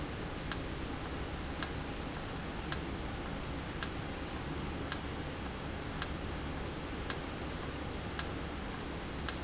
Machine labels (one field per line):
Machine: valve